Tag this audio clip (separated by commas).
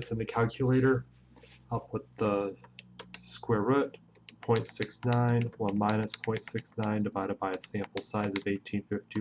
Speech